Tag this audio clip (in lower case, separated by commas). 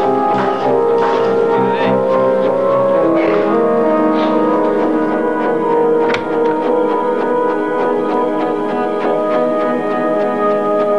tubular bells